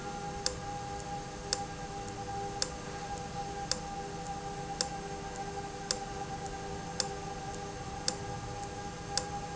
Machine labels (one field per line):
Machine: valve